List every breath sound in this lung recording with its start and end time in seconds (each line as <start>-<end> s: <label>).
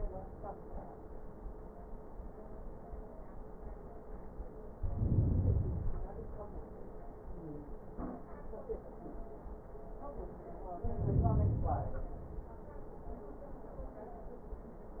4.69-6.19 s: inhalation
10.83-12.33 s: inhalation